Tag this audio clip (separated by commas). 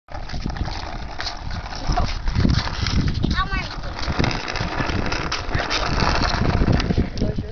Speech